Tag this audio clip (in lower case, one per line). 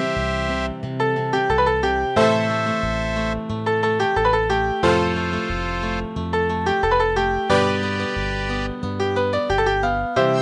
musical instrument
music